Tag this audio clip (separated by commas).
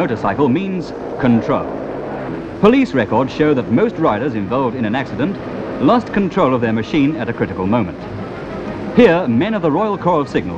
Speech